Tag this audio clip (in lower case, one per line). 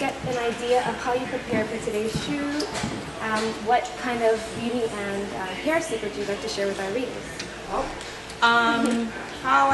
speech